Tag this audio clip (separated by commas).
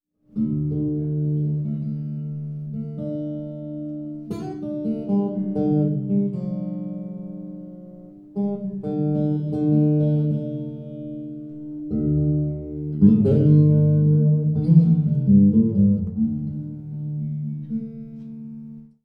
Guitar, Music, Plucked string instrument, Musical instrument